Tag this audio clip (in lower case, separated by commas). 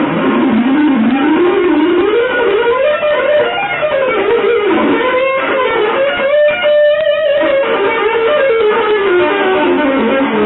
electric guitar, music, musical instrument, plucked string instrument, guitar, playing bass guitar, bass guitar